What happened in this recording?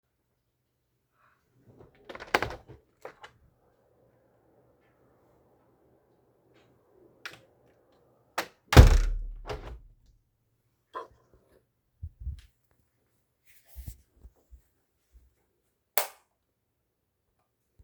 I opened my bedroom window for a few seconds and closed it, wind can be heard. Then I walked towards the door and switched off the lights.